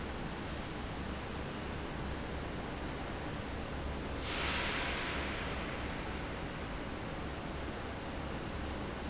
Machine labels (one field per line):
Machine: fan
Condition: abnormal